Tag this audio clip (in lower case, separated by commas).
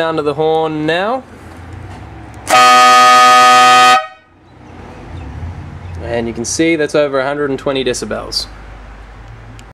speech, air horn